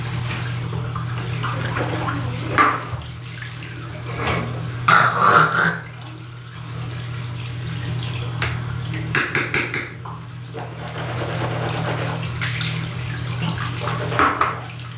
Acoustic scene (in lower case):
restroom